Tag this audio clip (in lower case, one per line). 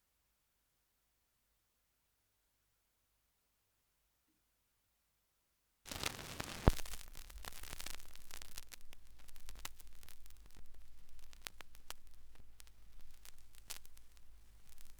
crackle